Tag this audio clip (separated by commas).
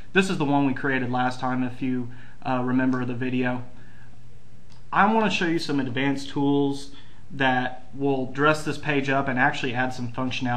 Speech